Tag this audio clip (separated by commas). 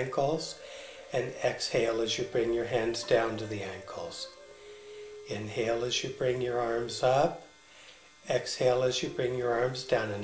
Music, Speech